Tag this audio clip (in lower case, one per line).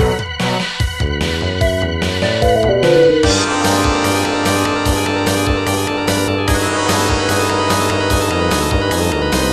music